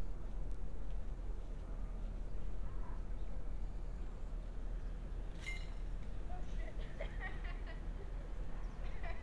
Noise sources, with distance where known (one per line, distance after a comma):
non-machinery impact
person or small group talking, near